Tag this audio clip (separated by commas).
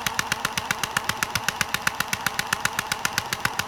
Tools